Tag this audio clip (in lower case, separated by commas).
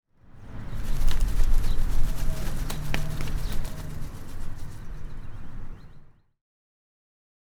bird, animal, wild animals